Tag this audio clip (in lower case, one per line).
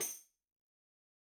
music
musical instrument
tambourine
percussion